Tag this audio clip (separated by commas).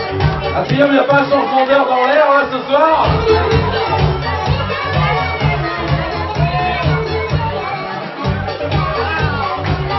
Music, Speech